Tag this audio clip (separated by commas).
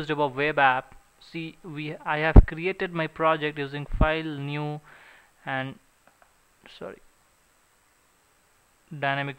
Speech